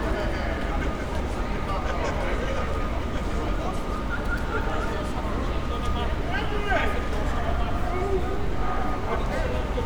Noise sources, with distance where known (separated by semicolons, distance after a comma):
unidentified human voice, near